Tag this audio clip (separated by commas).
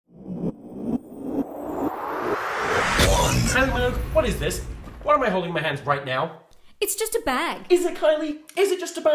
Speech